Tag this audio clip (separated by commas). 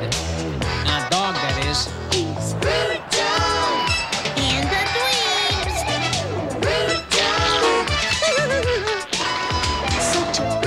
Music